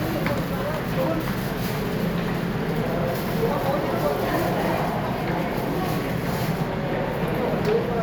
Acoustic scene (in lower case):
subway station